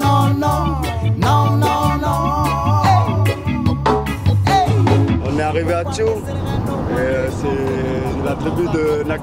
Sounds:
Speech, Music

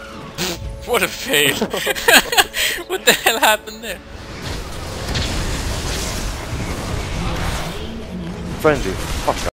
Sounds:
Speech

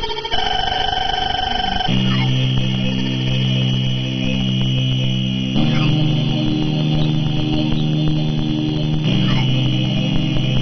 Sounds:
Music, Sampler

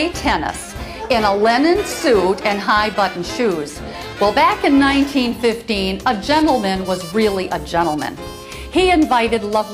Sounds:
woman speaking

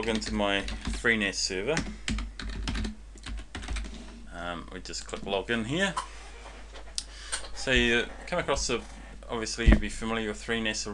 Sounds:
Speech, Computer keyboard, Typing

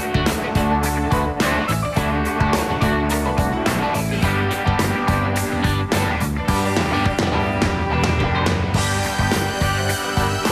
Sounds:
Music

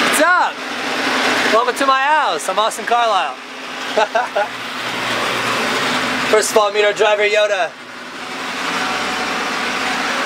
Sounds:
Speech

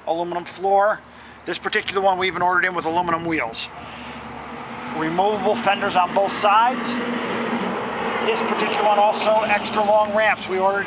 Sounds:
Speech, Motor vehicle (road)

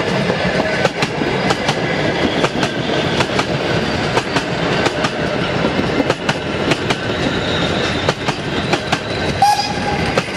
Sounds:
train whistling

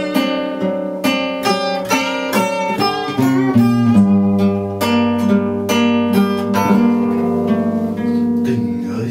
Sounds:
Music, Guitar, Acoustic guitar, Plucked string instrument, Musical instrument

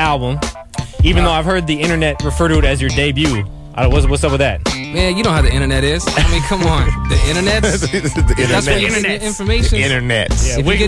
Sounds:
Music, Speech

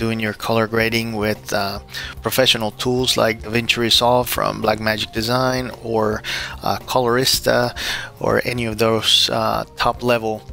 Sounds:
Speech, Music

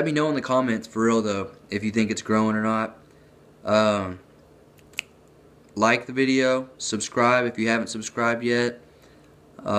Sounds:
inside a small room, Speech

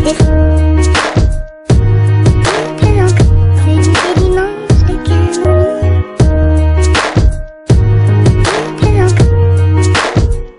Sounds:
Music, Dubstep

